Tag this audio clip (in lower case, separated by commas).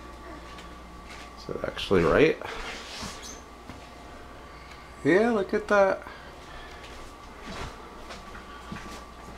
speech